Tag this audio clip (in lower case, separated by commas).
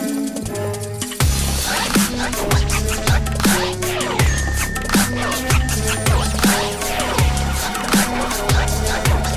music, dubstep